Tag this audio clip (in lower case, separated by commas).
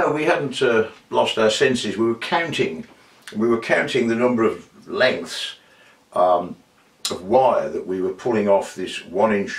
speech